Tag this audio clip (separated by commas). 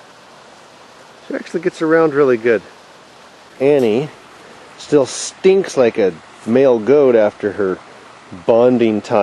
Speech